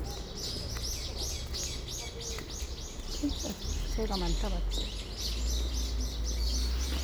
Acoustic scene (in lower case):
park